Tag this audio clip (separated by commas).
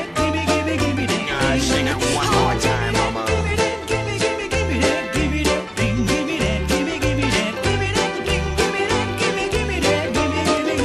Music